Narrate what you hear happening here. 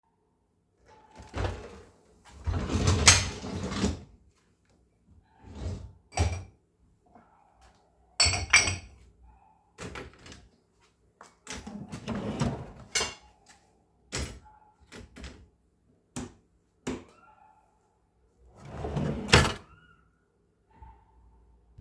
I opened the dishwasher and loaded dishes into it. After closing it, I shut the cutlery drawer and turned off the light.